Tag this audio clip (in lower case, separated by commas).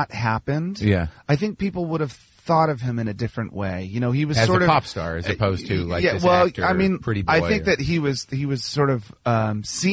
speech